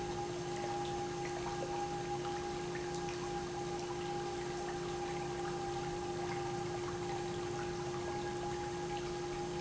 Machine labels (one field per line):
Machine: pump